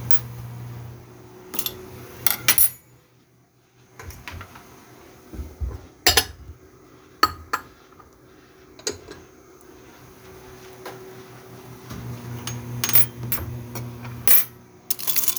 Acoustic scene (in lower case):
kitchen